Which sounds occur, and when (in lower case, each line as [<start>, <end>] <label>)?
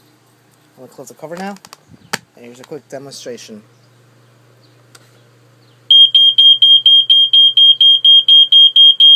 [0.00, 9.15] mechanisms
[0.49, 0.56] generic impact sounds
[0.74, 1.53] male speech
[1.45, 1.78] generic impact sounds
[1.79, 2.10] chirp
[2.08, 2.21] generic impact sounds
[2.35, 3.61] male speech
[2.57, 2.69] generic impact sounds
[3.67, 4.36] chirp
[4.59, 4.75] chirp
[4.90, 5.00] generic impact sounds
[5.07, 5.24] chirp
[5.55, 5.72] chirp
[5.87, 9.15] smoke detector